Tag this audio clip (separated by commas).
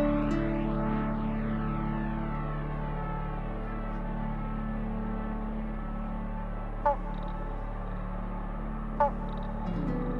Music